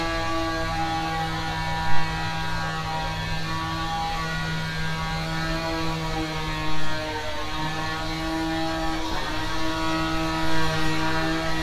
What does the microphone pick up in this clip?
large rotating saw